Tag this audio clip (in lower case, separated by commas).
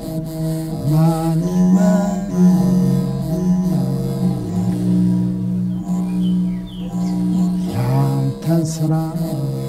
pizzicato